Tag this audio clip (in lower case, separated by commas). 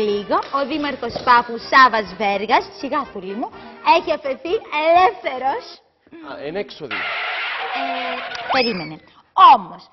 speech, female speech, music